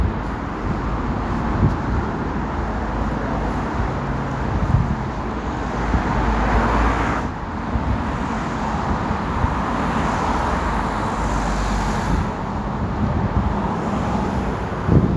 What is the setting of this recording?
street